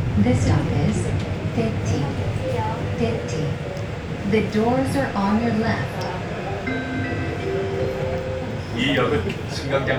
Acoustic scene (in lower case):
subway train